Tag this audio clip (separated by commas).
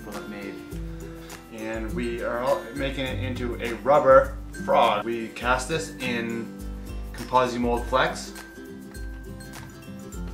Music, Speech